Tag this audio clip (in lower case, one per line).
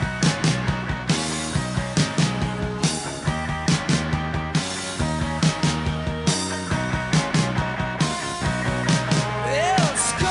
grunge
music